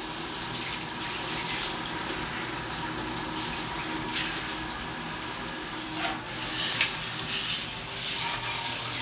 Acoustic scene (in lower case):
restroom